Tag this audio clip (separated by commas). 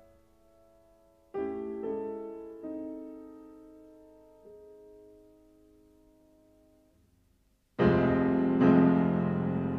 Musical instrument, Classical music, Piano, Music